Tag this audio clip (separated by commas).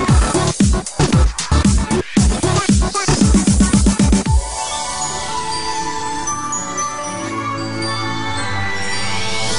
Music, Electronic dance music